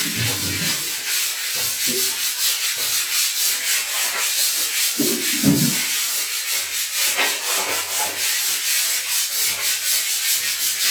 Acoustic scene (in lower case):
restroom